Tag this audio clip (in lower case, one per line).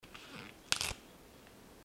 tearing